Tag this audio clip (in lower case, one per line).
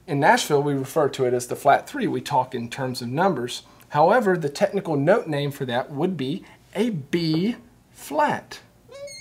speech